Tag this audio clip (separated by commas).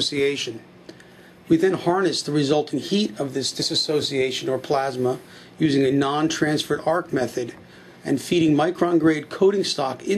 Speech